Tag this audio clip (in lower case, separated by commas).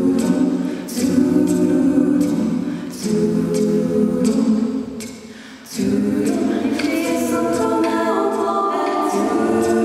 music, a capella